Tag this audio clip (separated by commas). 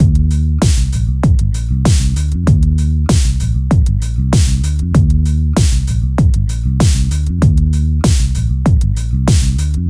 Plucked string instrument, Musical instrument, Bass guitar, Guitar, Music